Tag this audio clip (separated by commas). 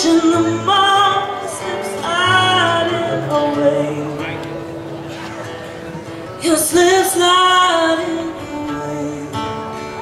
Music, Speech